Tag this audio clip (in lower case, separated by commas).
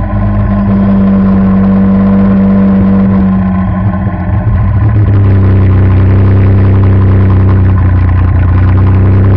vehicle, accelerating, car